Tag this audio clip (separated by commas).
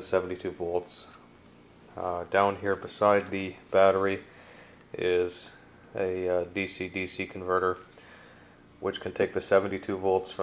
Speech